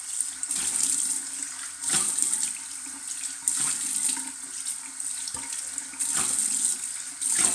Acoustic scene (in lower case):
restroom